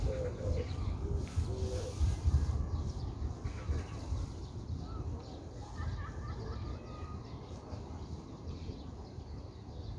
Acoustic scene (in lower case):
park